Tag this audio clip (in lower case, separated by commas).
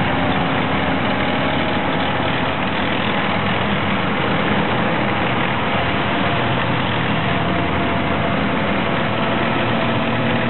truck, vehicle